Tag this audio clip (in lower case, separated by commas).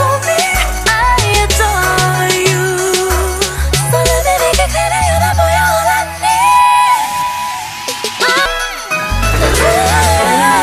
music, song, singing, pop music